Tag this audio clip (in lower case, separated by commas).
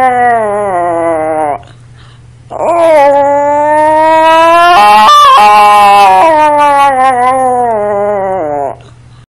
howl